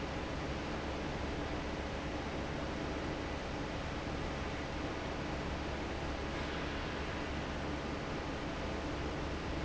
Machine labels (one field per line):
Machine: fan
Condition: normal